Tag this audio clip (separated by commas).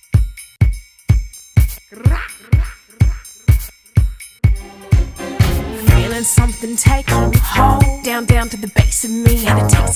Music, inside a large room or hall